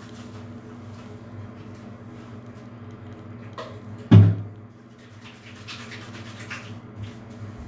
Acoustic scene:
restroom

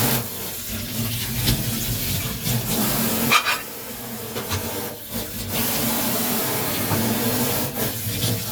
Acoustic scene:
kitchen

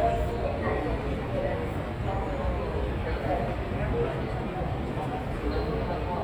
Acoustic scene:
subway station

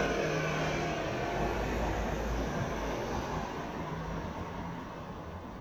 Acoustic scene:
street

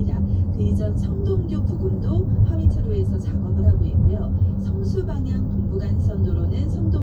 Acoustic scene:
car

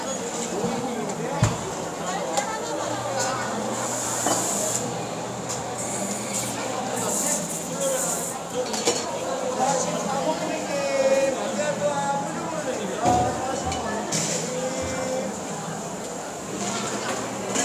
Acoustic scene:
cafe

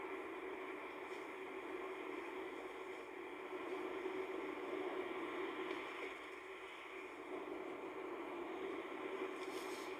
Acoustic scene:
car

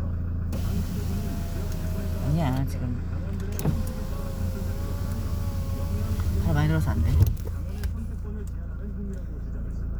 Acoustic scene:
car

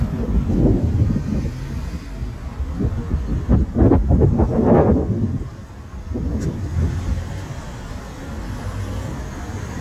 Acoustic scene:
street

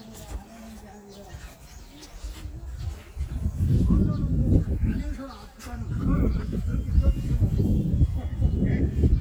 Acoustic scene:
park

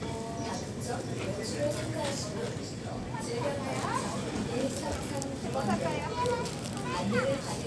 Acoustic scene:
crowded indoor space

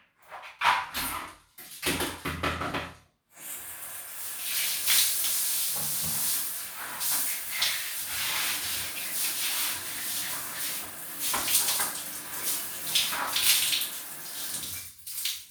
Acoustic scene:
restroom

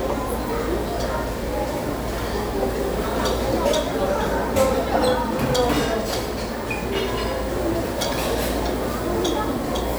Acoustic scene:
restaurant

